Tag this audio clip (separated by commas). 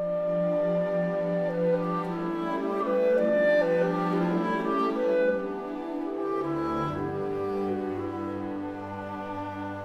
Music